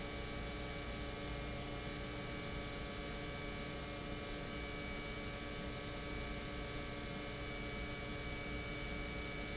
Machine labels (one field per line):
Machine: pump